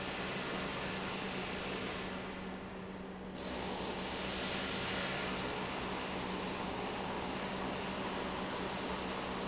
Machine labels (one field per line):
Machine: pump